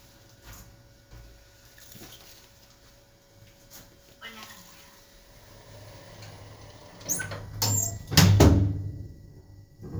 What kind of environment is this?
elevator